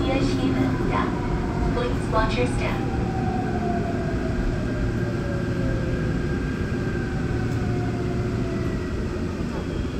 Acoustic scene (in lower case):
subway train